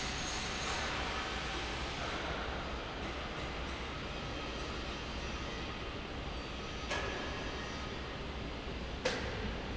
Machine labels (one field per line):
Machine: fan